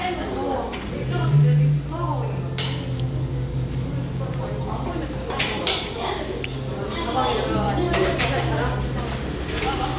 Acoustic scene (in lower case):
cafe